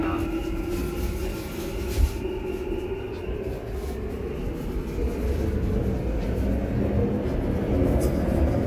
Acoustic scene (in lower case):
subway train